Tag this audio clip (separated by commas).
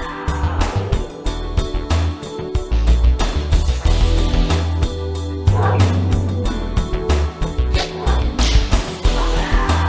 Music